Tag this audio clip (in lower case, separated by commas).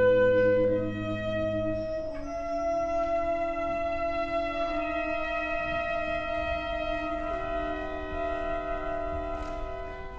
wind instrument